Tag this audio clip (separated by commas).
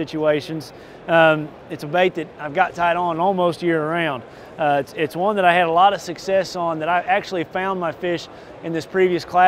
Speech